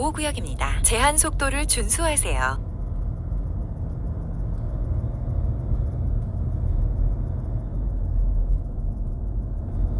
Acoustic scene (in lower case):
car